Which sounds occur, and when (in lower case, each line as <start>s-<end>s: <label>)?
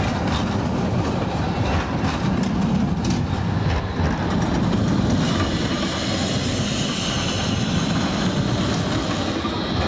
0.0s-9.8s: train
5.1s-9.8s: train wheels squealing